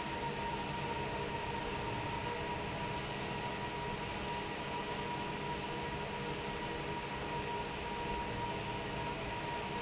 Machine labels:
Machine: fan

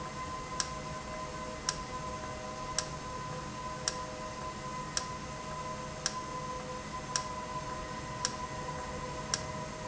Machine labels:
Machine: valve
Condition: normal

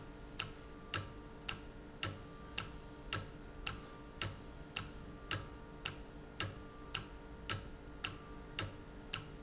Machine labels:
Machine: valve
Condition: normal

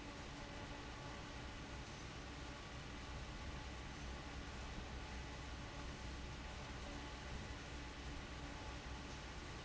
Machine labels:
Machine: fan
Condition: abnormal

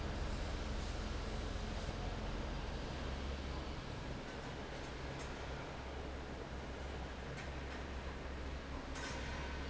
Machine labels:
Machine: fan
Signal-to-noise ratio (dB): 0 dB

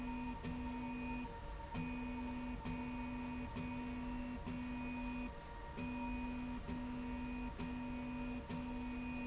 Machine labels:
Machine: slide rail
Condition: normal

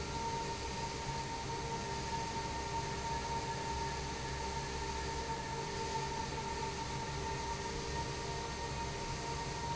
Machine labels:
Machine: fan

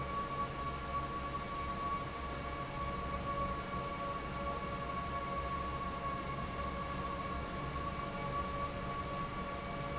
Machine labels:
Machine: fan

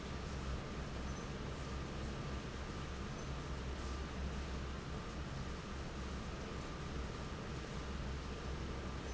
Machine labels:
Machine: fan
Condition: normal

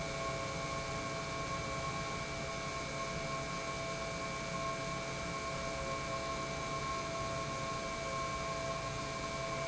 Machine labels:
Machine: pump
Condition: normal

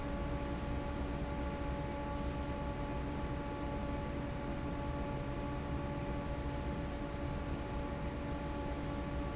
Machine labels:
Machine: fan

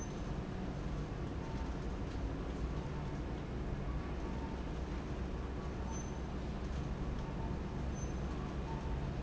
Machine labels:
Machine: fan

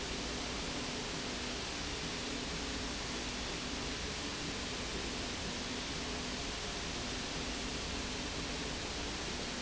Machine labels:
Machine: slide rail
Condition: normal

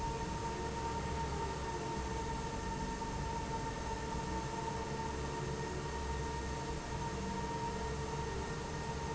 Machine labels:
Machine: fan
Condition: normal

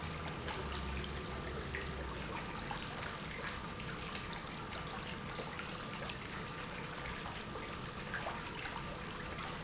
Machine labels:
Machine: pump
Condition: normal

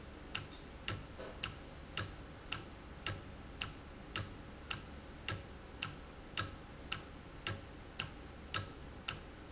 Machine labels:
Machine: valve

